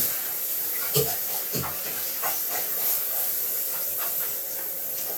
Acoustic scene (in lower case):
restroom